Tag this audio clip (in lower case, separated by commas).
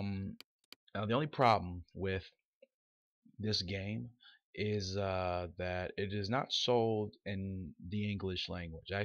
speech